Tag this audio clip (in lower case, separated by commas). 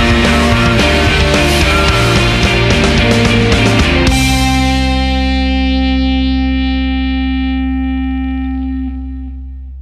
music